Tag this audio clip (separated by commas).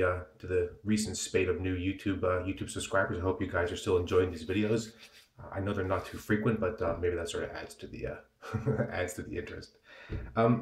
Speech